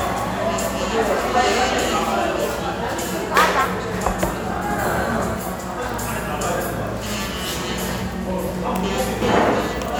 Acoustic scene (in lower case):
cafe